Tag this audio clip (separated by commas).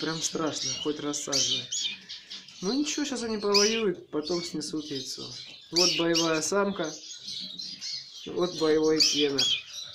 canary calling